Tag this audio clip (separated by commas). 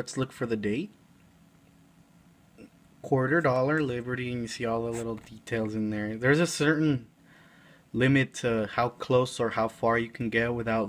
Speech